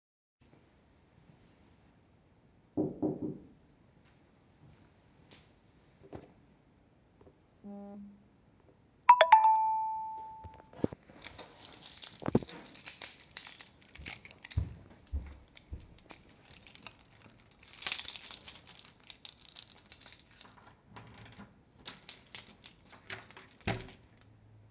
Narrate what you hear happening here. Somebody knocked on my door, then my phone vibrated and it made a notification sound. I grabbed my keys, walked to the door, inserted my keys into the lock and opened it.